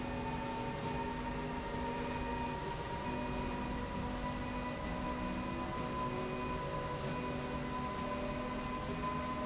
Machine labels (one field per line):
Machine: slide rail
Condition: normal